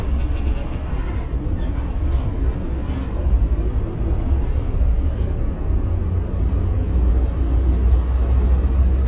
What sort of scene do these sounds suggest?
bus